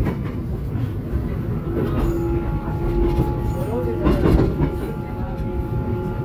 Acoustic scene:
subway train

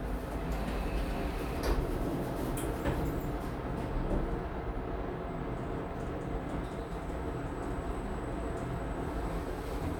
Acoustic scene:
elevator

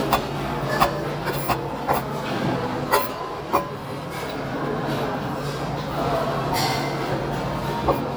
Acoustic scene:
restaurant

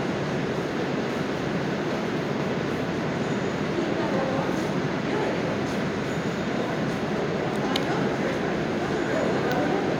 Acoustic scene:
subway station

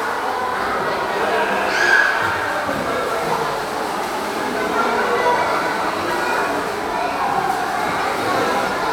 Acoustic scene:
crowded indoor space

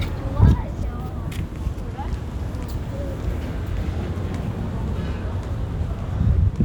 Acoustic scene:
residential area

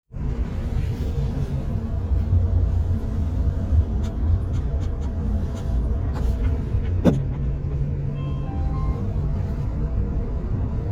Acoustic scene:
car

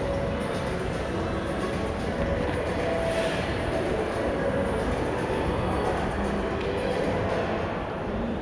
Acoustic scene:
crowded indoor space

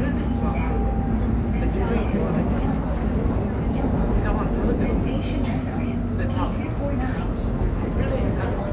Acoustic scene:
subway train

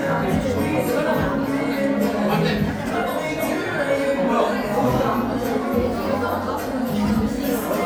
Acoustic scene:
crowded indoor space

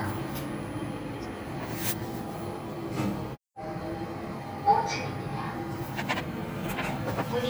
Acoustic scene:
elevator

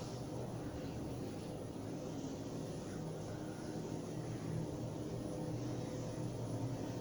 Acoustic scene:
elevator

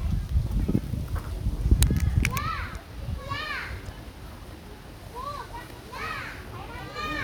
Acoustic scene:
park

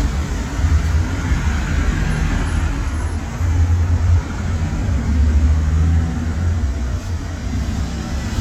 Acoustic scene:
street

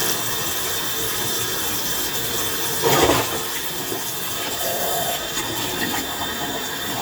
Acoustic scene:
kitchen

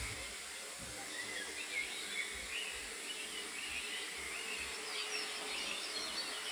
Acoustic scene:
park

